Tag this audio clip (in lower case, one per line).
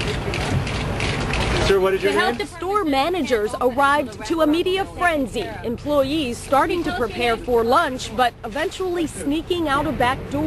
speech